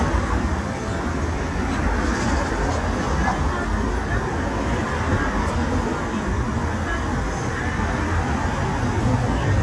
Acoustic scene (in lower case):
street